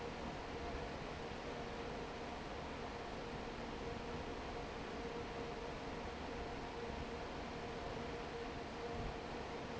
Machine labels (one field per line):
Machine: fan